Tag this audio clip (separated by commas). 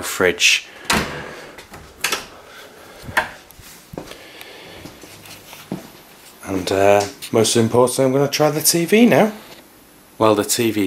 Speech, inside a small room